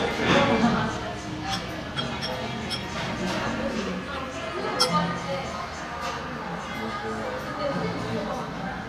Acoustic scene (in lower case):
cafe